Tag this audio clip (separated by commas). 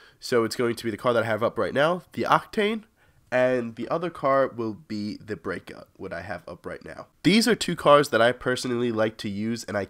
Speech